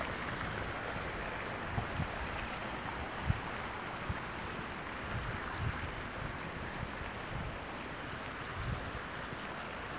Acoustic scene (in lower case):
park